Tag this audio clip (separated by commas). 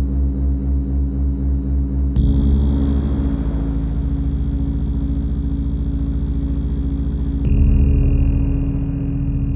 Music, Ambient music